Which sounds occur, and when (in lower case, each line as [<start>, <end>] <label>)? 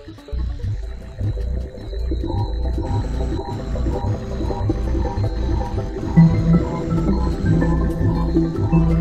[0.00, 9.00] music
[2.15, 2.56] animal
[2.71, 3.04] animal
[3.25, 3.57] animal
[3.80, 4.05] animal
[4.33, 4.58] animal
[4.90, 5.20] animal
[5.38, 5.72] animal
[6.02, 6.31] animal
[6.43, 6.79] animal
[7.00, 7.25] animal
[7.47, 7.77] animal
[7.91, 8.18] animal
[8.64, 8.86] animal